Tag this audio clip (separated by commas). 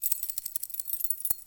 Keys jangling, home sounds